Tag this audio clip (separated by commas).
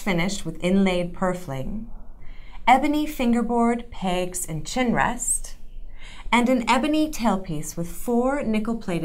Speech